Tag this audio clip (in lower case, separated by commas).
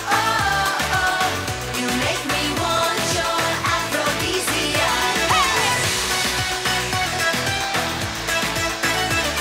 music, music of asia, singing